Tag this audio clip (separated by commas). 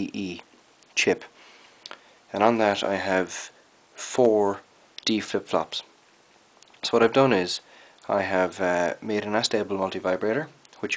Speech